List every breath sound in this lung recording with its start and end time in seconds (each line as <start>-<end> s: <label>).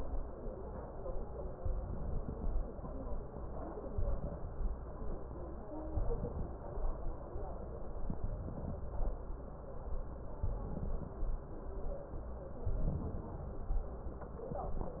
1.50-2.73 s: inhalation
3.93-4.76 s: inhalation
5.96-6.79 s: inhalation
7.98-8.81 s: inhalation
10.41-11.24 s: inhalation
12.66-13.49 s: inhalation